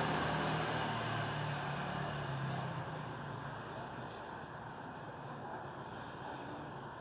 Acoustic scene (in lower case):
residential area